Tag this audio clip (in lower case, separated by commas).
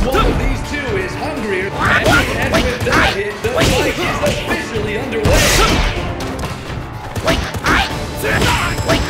music, speech